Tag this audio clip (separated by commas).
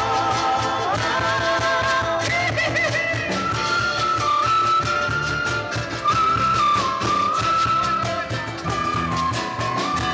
Singing, Music